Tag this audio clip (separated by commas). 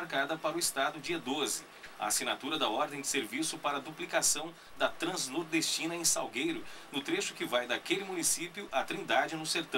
Speech